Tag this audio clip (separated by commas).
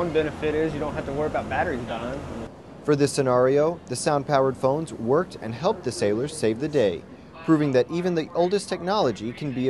Speech